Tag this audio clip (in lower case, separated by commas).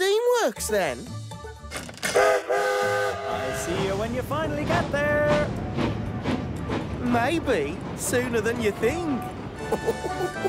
music, outside, rural or natural, rail transport, train, speech